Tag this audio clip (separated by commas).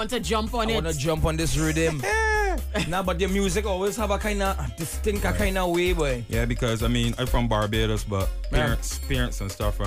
Music, Speech